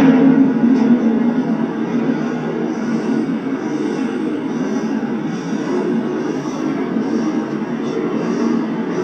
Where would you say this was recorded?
on a subway train